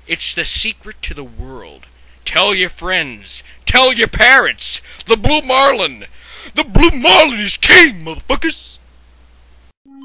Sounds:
Speech

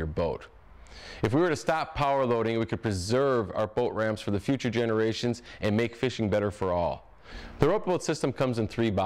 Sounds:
Speech

